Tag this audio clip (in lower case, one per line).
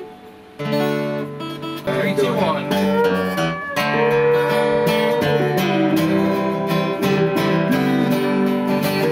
music